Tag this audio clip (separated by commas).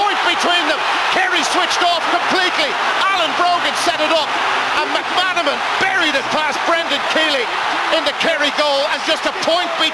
Speech